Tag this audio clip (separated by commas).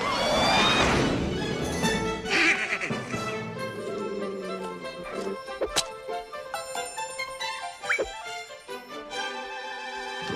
Music